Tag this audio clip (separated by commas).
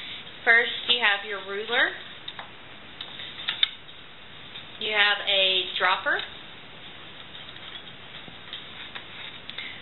Speech